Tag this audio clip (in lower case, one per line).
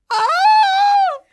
human voice
screaming